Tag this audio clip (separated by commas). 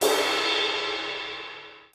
Musical instrument, Percussion, Crash cymbal, Cymbal, Music